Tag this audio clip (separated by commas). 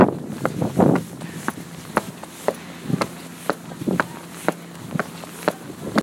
footsteps